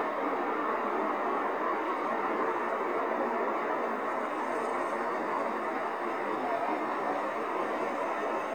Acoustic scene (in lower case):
street